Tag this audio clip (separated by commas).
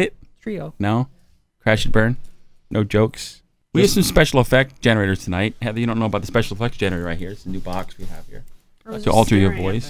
Speech